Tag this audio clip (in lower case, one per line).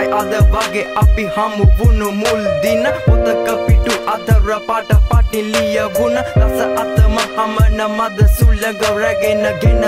music
exciting music